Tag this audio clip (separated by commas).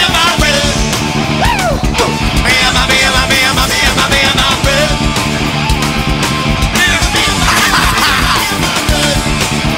Music